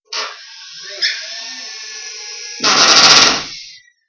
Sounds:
tools, power tool, drill

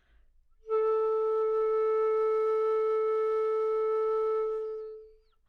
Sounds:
musical instrument, music, woodwind instrument

